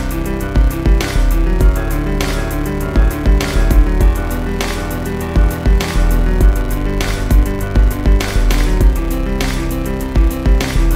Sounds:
music

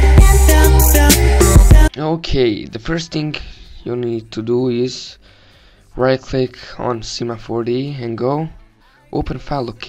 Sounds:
music
speech

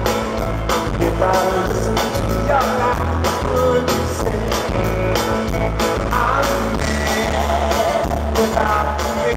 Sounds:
music

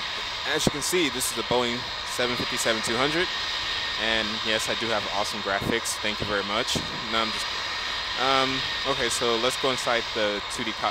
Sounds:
speech
aircraft

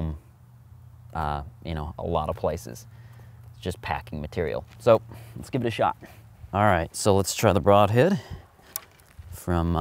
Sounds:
speech
outside, rural or natural

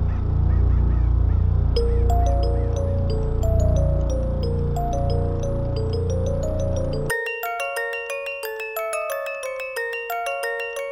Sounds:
music

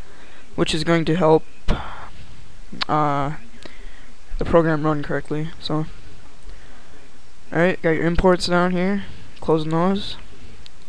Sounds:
speech

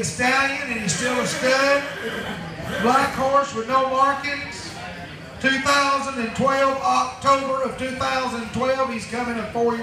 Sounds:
speech

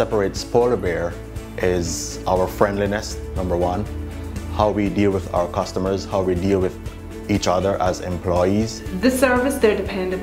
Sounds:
music
speech

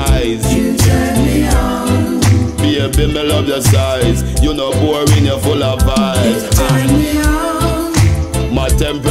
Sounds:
music

